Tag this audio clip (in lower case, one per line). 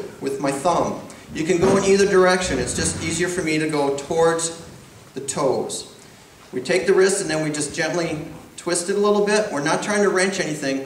speech